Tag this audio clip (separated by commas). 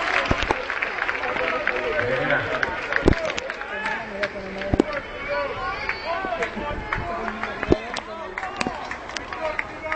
Speech